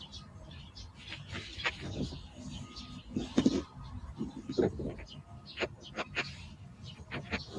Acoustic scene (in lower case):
park